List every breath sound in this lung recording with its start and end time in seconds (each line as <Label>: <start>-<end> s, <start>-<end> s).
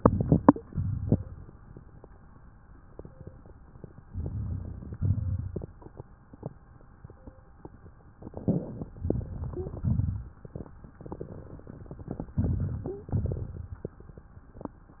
Inhalation: 0.00-0.63 s, 4.05-4.95 s, 8.97-9.79 s, 12.34-13.12 s
Exhalation: 0.64-1.26 s, 4.97-5.80 s, 9.81-10.64 s, 13.11-13.89 s
Crackles: 0.00-0.63 s, 0.64-1.26 s, 4.05-4.95 s, 4.97-5.80 s, 8.97-9.79 s, 9.81-10.64 s, 12.30-13.09 s, 13.11-13.89 s